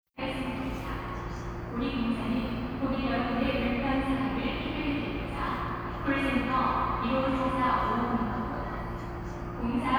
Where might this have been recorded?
in a subway station